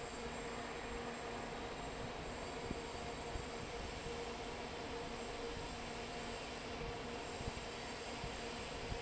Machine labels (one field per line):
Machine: fan